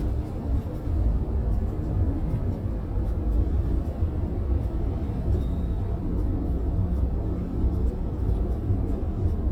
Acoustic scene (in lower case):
bus